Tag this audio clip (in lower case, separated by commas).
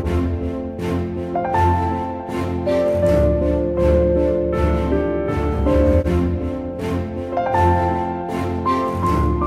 music